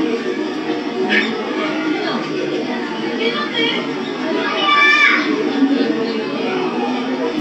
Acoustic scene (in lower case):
park